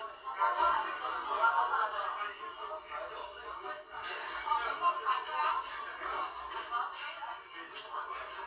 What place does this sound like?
crowded indoor space